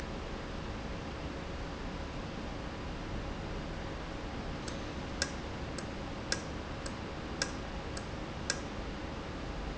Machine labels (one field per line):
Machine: valve